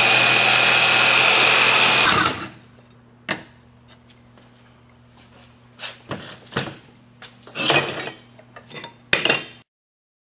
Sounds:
Rub, Sawing, dishes, pots and pans

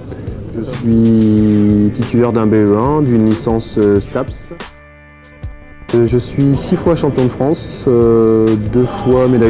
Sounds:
Music, Speech

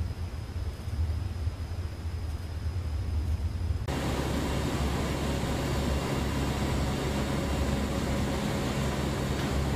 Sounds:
Vehicle

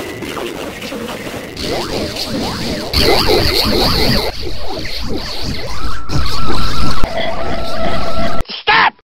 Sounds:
Music, Speech

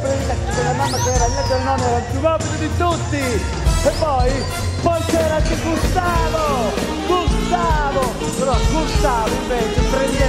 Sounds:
Rock music, Music

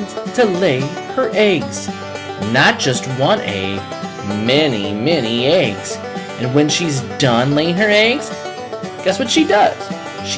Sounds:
Speech, Music

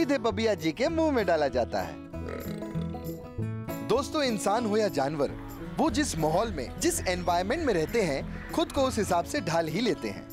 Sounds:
alligators

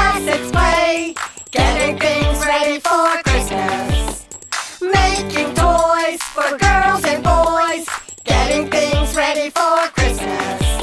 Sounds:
Music, Background music

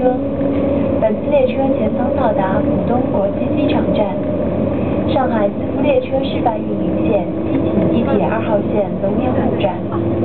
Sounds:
Vehicle, Accelerating, Speech

